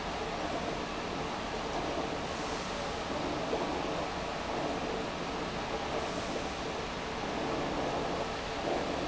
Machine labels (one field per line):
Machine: pump